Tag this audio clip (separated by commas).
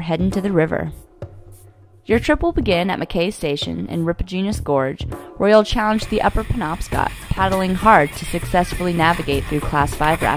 Vehicle, Narration, Boat